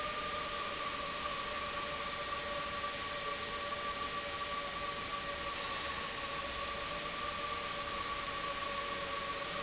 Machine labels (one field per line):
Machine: pump